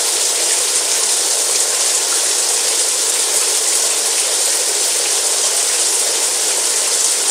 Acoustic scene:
restroom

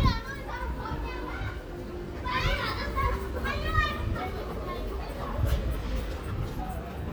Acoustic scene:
residential area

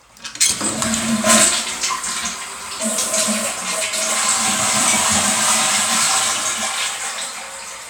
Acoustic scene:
restroom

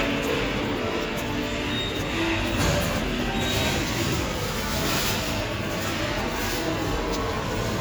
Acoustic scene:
subway station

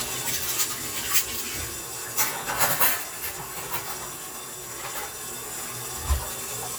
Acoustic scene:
kitchen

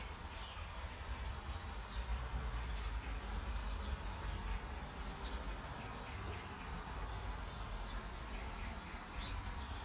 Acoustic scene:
park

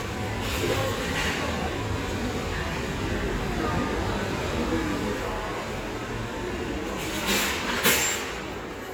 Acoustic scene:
crowded indoor space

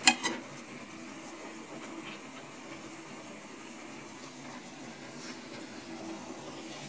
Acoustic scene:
kitchen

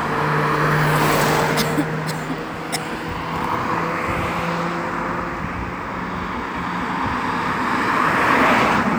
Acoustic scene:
street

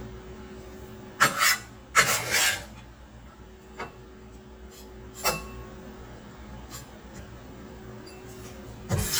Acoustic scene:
kitchen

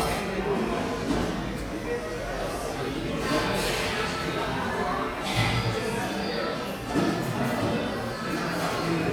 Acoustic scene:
cafe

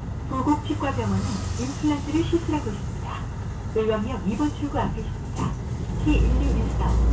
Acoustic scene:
bus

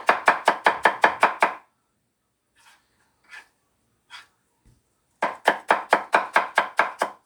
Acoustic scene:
kitchen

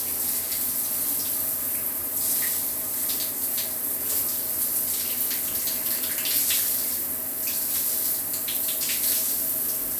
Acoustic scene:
restroom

